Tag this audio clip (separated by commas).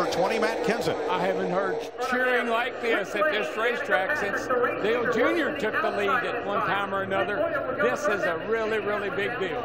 Speech